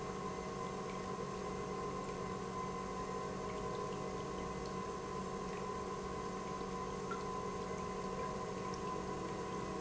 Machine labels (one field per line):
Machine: pump